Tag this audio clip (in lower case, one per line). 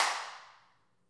hands
clapping